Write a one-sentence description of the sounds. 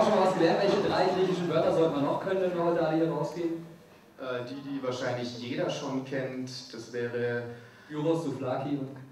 People speaking into a microphone